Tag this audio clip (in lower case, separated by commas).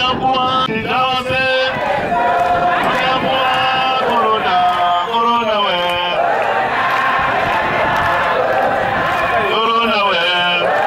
male speech, narration